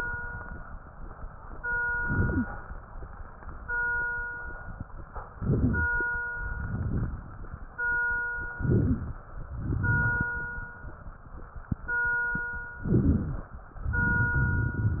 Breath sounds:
Inhalation: 1.99-2.49 s, 5.35-5.96 s, 8.56-9.17 s, 12.88-13.59 s
Exhalation: 6.51-7.69 s, 9.58-10.76 s, 13.83-15.00 s
Wheeze: 2.18-2.49 s, 5.35-5.96 s, 8.77-9.07 s, 12.88-13.59 s
Crackles: 6.51-7.69 s, 9.58-10.76 s, 13.83-15.00 s

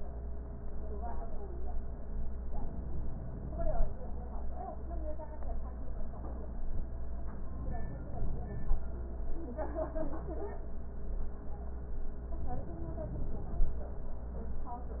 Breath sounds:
Inhalation: 2.51-3.94 s, 7.42-8.84 s, 12.39-13.81 s

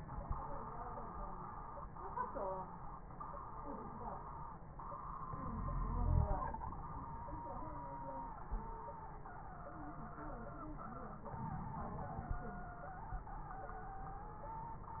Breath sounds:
Inhalation: 5.24-6.54 s, 11.29-12.39 s
Wheeze: 5.49-6.39 s
Crackles: 11.29-12.39 s

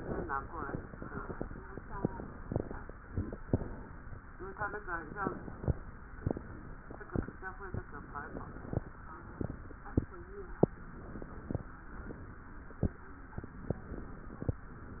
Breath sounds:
Inhalation: 4.40-5.79 s, 7.72-8.79 s, 10.72-11.74 s, 13.47-14.49 s
Exhalation: 6.27-7.26 s, 8.79-9.77 s, 11.72-12.75 s, 14.49-15.00 s

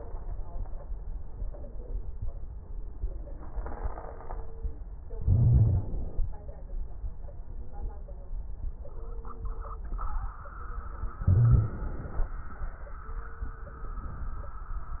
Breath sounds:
Inhalation: 5.20-6.26 s, 11.25-12.33 s
Wheeze: 5.20-5.92 s, 11.25-11.76 s

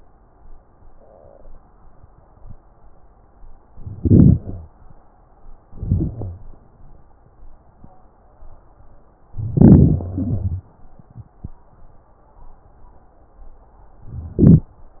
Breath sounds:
Inhalation: 3.70-4.70 s, 5.73-6.50 s, 9.38-10.06 s, 14.06-14.73 s
Exhalation: 10.05-10.73 s
Wheeze: 4.40-4.70 s, 6.05-6.50 s, 10.05-10.73 s

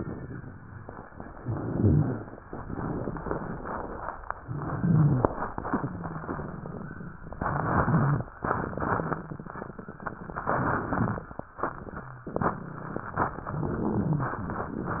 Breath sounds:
Inhalation: 1.41-2.35 s, 4.48-5.43 s, 7.38-8.29 s, 10.49-11.40 s, 13.51-14.42 s
Crackles: 1.41-2.35 s, 4.48-5.43 s, 7.38-8.29 s, 10.49-11.40 s, 13.51-14.42 s

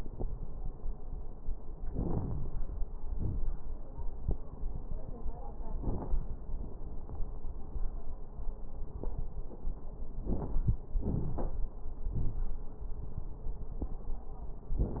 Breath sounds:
Inhalation: 1.92-2.75 s, 10.22-10.70 s
Exhalation: 3.13-3.46 s, 11.02-11.67 s
Crackles: 1.92-2.75 s, 3.13-3.46 s, 10.22-10.70 s, 11.02-11.67 s

